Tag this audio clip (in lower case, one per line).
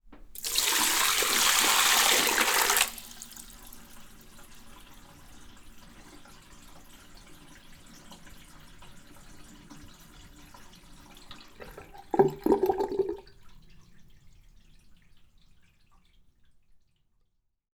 sink (filling or washing)
home sounds